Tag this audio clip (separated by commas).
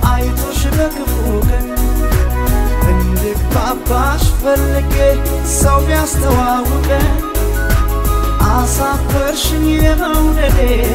Music